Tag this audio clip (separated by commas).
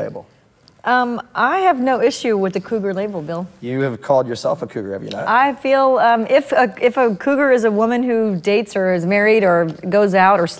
Speech